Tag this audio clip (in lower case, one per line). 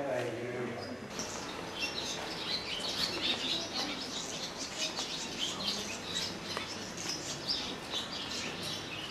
speech
outside, rural or natural
tweet